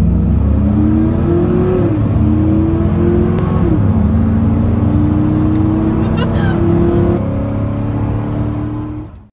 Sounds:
vehicle, car

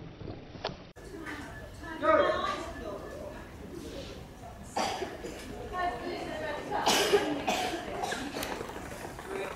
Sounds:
run, speech

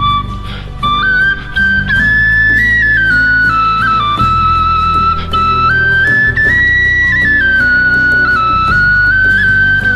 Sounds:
flute, music

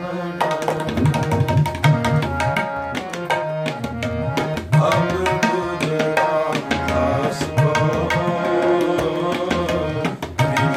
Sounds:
music, percussion, drum, musical instrument, tabla

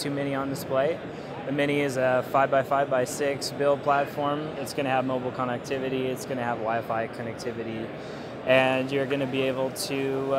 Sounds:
speech

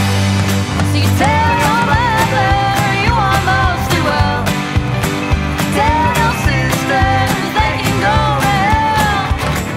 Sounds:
rhythm and blues, music

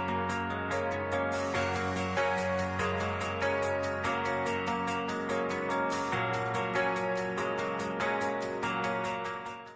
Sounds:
music

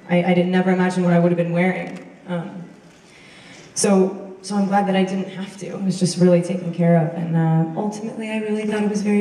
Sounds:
speech

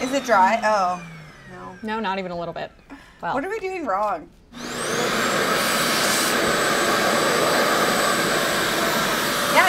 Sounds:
hair dryer drying

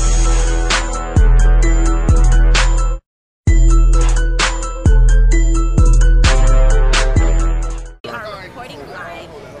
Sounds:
music, speech

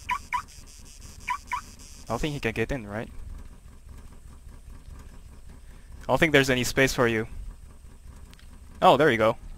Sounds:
outside, rural or natural, speech, vehicle

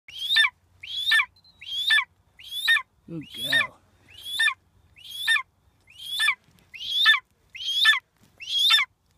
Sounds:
outside, rural or natural, speech, bird

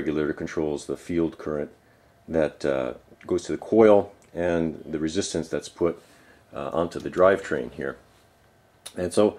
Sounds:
speech

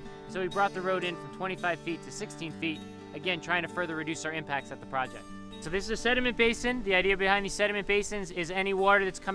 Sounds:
music, speech, rustling leaves

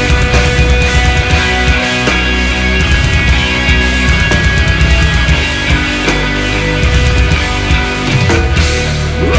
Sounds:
music

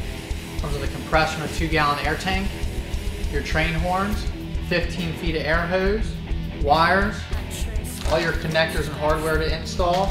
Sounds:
music, speech

